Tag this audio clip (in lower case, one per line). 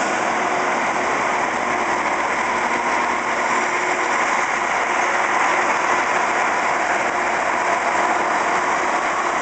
outside, urban or man-made
vehicle
train wagon
train